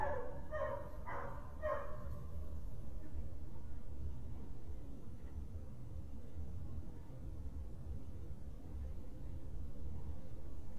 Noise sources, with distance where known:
dog barking or whining, near

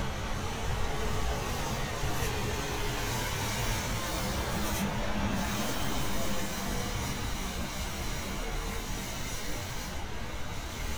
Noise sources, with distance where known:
large-sounding engine, far

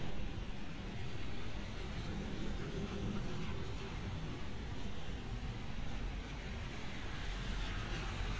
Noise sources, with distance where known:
medium-sounding engine, near

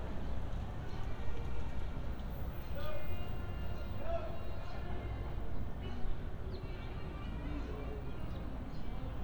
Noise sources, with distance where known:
music from a fixed source; unidentified human voice, far

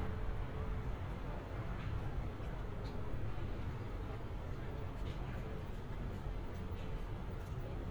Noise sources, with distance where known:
background noise

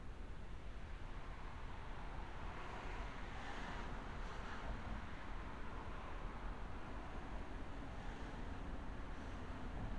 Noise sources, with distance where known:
engine of unclear size

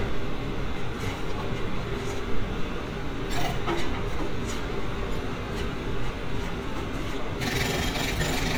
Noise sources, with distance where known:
jackhammer

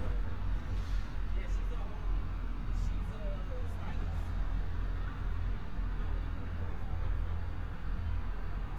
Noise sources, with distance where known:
engine of unclear size; person or small group talking, near

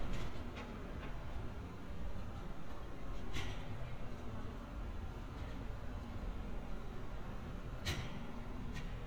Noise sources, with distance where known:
background noise

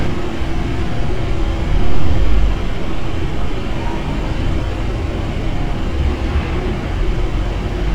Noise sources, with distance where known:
unidentified impact machinery, far

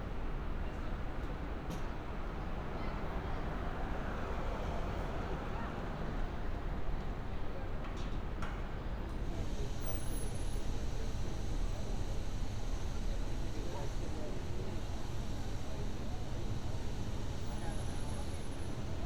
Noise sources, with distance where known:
medium-sounding engine; person or small group talking

